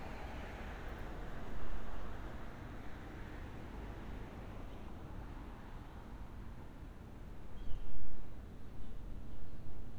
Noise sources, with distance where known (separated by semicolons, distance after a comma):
medium-sounding engine, far